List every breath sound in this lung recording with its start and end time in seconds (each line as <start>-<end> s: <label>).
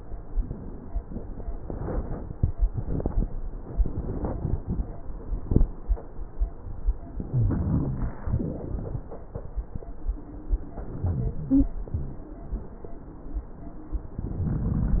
7.21-8.21 s: inhalation
7.29-8.24 s: wheeze
8.27-9.02 s: exhalation
10.76-11.70 s: inhalation
10.99-11.67 s: wheeze
14.44-15.00 s: rhonchi